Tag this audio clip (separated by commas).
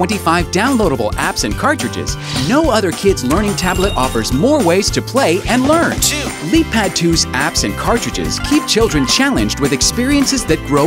Speech, Music